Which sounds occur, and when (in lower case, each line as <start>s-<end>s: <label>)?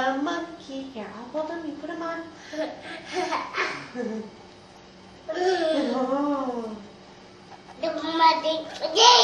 0.0s-9.2s: mechanisms
0.0s-2.4s: woman speaking
2.4s-4.3s: laughter
5.3s-6.0s: child speech
5.8s-7.0s: woman speaking
7.5s-7.6s: tick
7.7s-7.8s: tick
7.8s-9.2s: child speech
8.8s-8.9s: tick